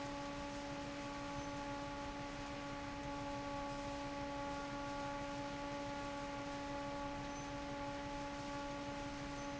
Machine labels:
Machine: fan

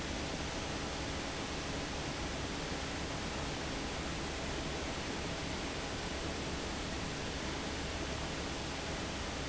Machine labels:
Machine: fan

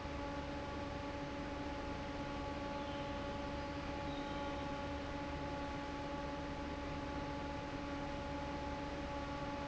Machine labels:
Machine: fan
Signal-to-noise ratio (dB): 0 dB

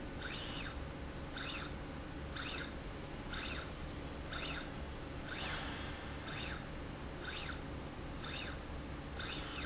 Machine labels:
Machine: slide rail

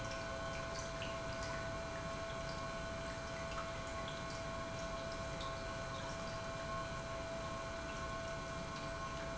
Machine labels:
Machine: pump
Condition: normal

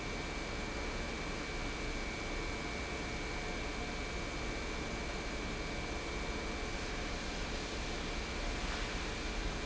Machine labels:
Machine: pump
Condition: normal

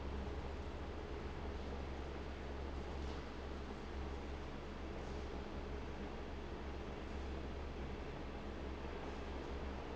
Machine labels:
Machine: fan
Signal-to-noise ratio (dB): 6 dB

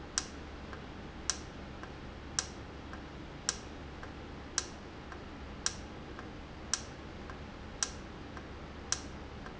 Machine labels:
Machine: valve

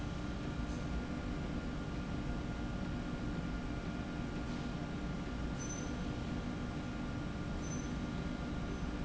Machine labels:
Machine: slide rail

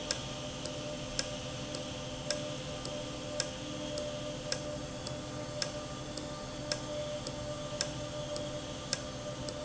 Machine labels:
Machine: valve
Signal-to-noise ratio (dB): -6 dB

